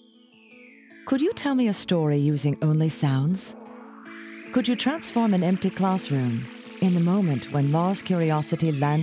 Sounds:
music, speech

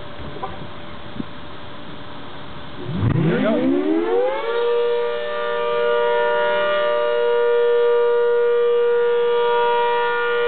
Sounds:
civil defense siren

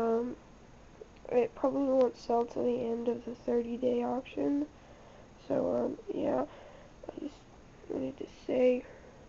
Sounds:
speech

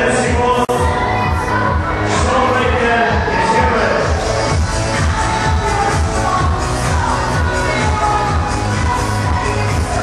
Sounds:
music, speech

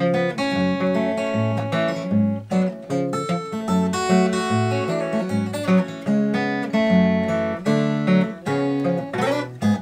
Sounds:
guitar, plucked string instrument, strum, music, acoustic guitar, musical instrument, playing acoustic guitar

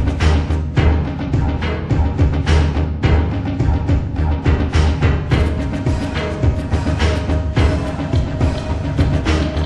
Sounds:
music, timpani

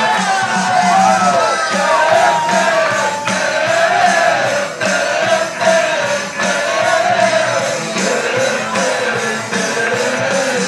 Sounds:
speech, music

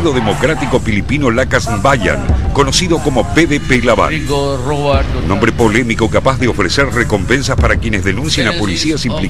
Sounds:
music, speech

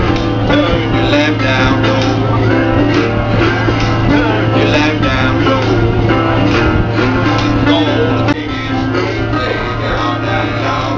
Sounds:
guitar, music, musical instrument, strum, plucked string instrument

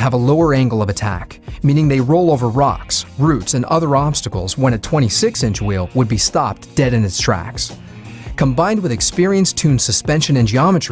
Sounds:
speech, music

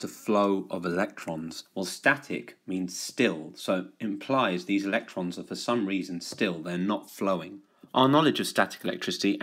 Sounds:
speech

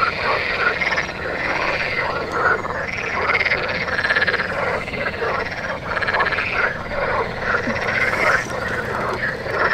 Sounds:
frog croaking

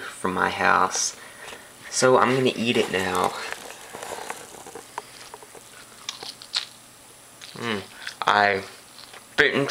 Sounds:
speech

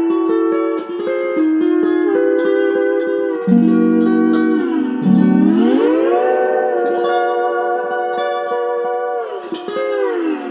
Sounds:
playing steel guitar

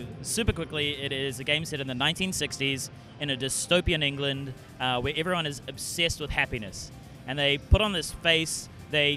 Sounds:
music, speech

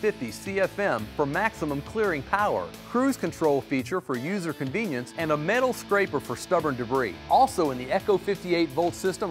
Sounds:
speech, music

